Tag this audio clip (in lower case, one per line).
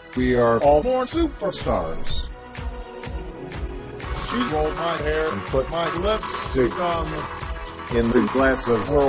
music
speech